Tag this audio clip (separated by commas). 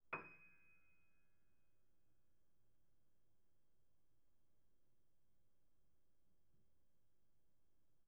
Music, Musical instrument, Keyboard (musical), Piano